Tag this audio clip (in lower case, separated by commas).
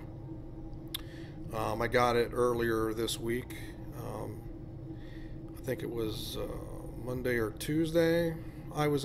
speech